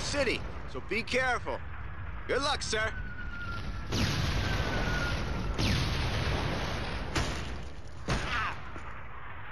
There is a male adult speaking then artillery is launched